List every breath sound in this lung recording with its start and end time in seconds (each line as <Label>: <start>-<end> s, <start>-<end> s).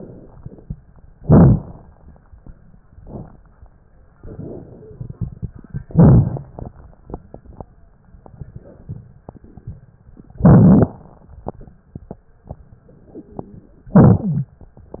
Inhalation: 1.10-2.83 s, 5.81-8.03 s, 10.31-12.37 s, 13.93-14.58 s
Exhalation: 2.85-5.80 s, 8.08-10.32 s, 12.40-13.91 s
Wheeze: 12.88-13.71 s, 14.22-14.58 s
Crackles: 1.10-2.83 s, 2.85-5.80 s, 5.81-8.03 s, 8.04-10.29 s, 10.31-12.37 s